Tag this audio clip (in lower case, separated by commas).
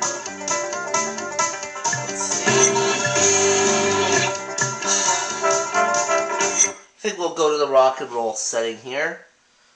speech, music